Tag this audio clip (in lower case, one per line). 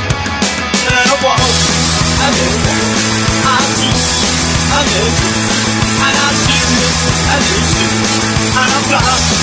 plucked string instrument
musical instrument
guitar
electric guitar
music